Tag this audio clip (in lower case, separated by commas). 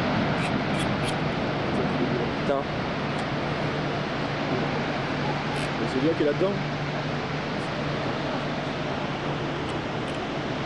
speech